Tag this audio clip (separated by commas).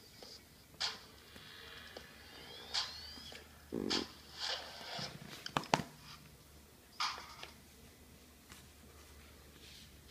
inside a small room